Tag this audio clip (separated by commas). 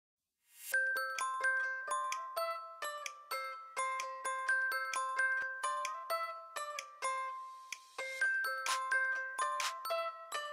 Music, Glockenspiel